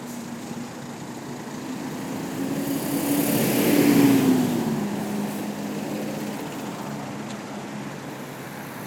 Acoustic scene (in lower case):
street